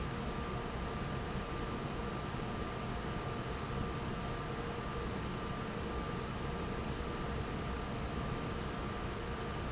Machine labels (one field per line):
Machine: fan